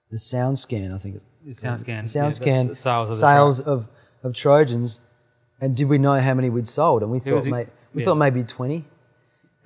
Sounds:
speech

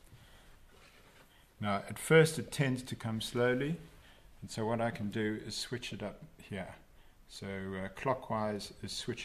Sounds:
speech

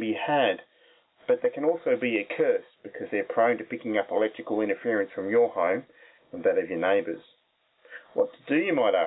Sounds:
speech

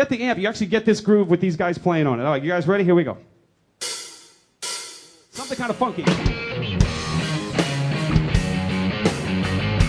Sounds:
speech
musical instrument
guitar
plucked string instrument
music

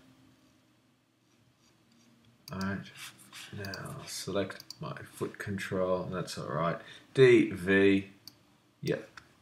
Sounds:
speech
clicking

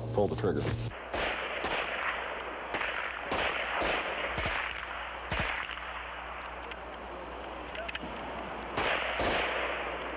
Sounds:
machine gun shooting

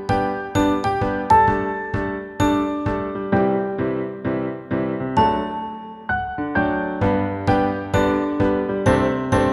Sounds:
music

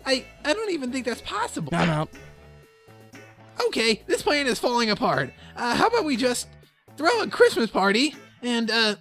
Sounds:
music
speech

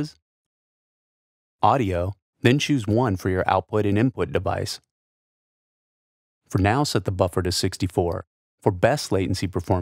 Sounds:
speech

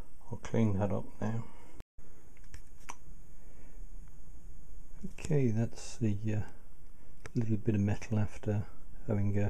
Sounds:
speech

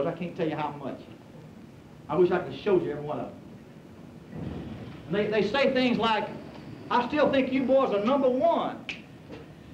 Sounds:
narration
speech
man speaking

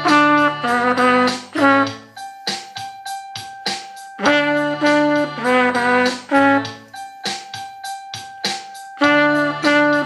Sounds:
playing trumpet
trumpet
musical instrument
music

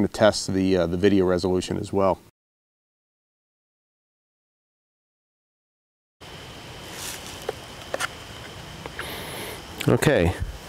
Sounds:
speech

